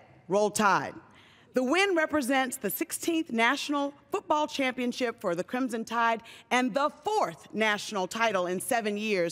She is giving a speech